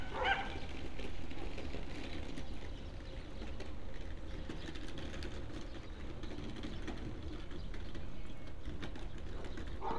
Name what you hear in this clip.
dog barking or whining